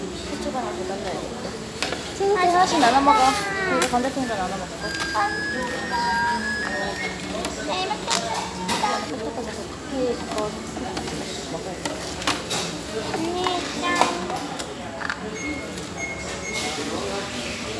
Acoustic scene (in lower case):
restaurant